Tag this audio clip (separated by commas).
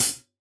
Music, Cymbal, Musical instrument, Hi-hat, Percussion